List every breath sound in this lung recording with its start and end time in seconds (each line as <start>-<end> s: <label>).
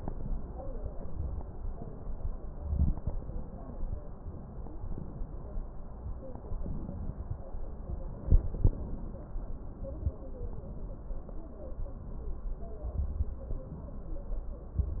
2.55-3.07 s: inhalation
2.55-3.07 s: crackles
2.55-3.29 s: crackles
8.24-9.34 s: inhalation
8.24-9.34 s: crackles